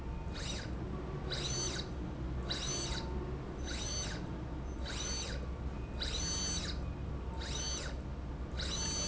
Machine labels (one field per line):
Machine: slide rail